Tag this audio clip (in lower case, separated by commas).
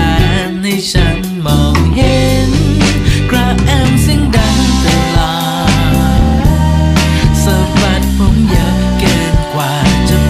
music